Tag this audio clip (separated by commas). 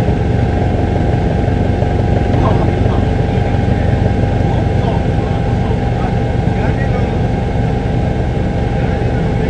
Speech